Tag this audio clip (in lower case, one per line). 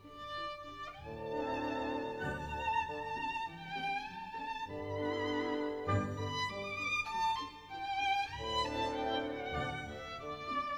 violin
musical instrument
music